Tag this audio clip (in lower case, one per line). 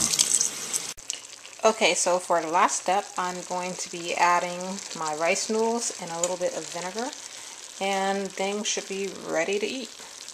frying (food)
sizzle